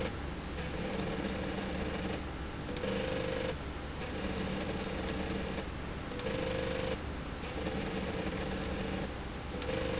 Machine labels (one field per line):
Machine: slide rail